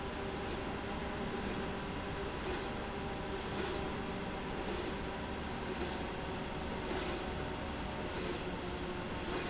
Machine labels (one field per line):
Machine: slide rail